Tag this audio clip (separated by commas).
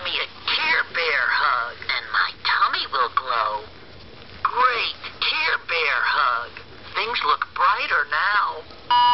Speech